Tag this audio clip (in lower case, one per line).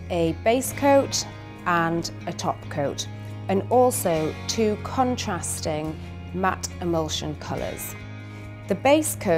music
speech